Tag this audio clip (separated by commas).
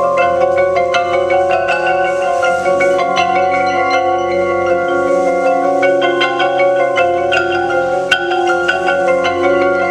Percussion